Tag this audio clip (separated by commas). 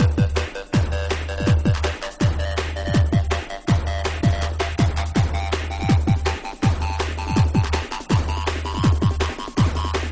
Techno, Music